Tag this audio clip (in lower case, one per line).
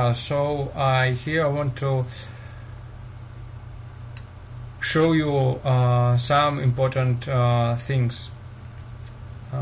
speech